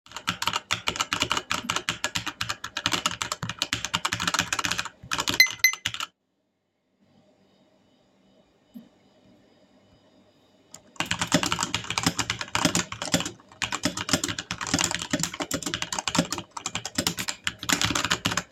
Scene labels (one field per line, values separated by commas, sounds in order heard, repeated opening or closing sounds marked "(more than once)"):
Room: bedroom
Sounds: keyboard typing, phone ringing